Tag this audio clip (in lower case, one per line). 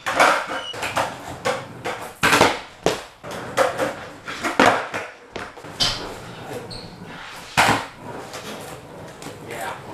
skateboarding